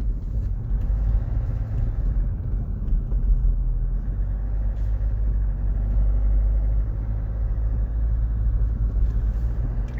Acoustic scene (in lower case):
car